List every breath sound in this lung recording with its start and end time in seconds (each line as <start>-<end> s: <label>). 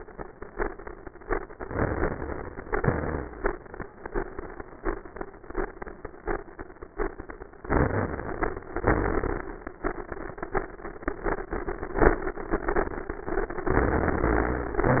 1.50-2.64 s: inhalation
2.64-3.36 s: exhalation
7.66-8.68 s: inhalation
8.76-9.46 s: exhalation
13.68-14.84 s: inhalation